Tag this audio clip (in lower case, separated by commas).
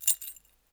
home sounds, keys jangling